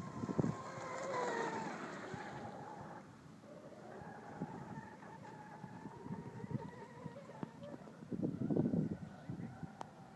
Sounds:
speedboat, Vehicle, Water vehicle

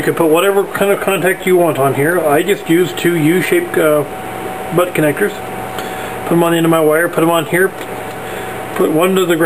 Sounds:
Mechanical fan

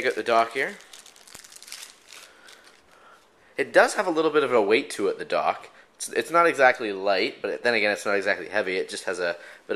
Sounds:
Speech

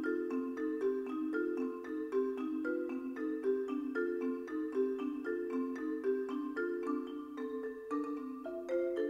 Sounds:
Musical instrument, Music, Marimba, Vibraphone, playing marimba, Percussion

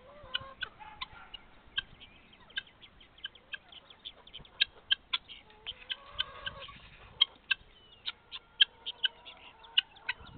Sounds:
rooster, Fowl, Bird

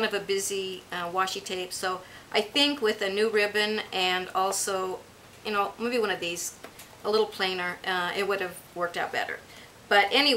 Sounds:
Speech

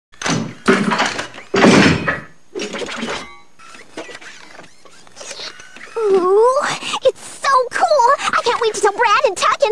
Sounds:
Speech

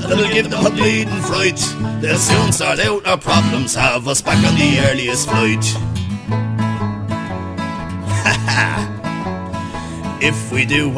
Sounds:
Music

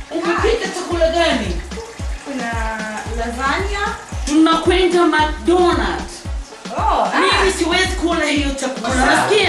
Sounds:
Music, Background music, Speech

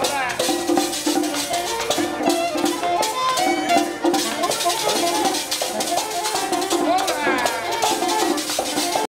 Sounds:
Music, Traditional music

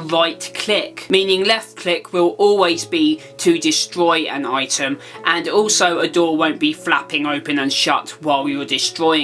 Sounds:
inside a small room, Speech, Music

